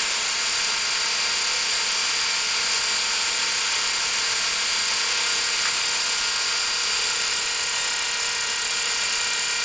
A drill making a hole in an unknown object